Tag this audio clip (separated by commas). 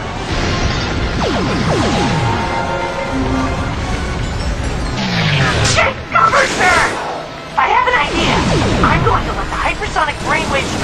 Music, Speech